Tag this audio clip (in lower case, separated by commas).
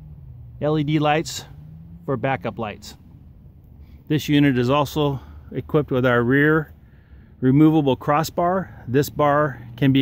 speech